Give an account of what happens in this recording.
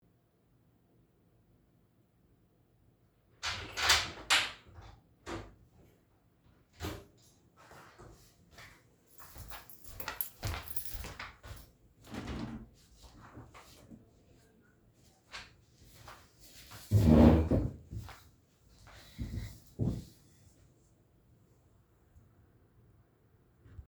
I opened the door, walked across the room with a keychain, then I opened my windows and sat down in my chair.